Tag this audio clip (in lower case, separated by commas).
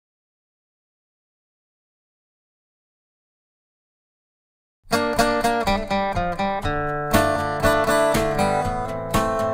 music, acoustic guitar